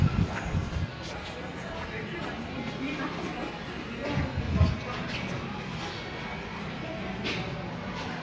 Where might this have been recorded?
in a residential area